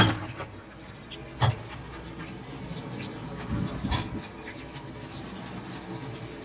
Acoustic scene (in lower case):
kitchen